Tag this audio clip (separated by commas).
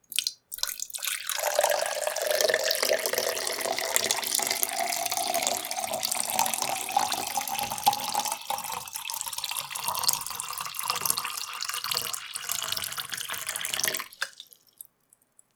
Liquid